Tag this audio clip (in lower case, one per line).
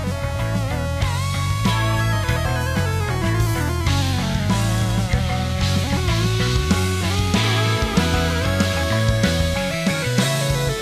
music